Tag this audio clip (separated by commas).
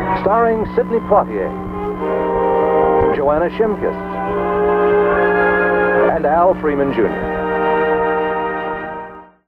Music, Speech